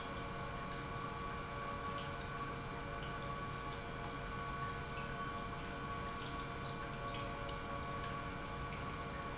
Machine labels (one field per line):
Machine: pump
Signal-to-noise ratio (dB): 0 dB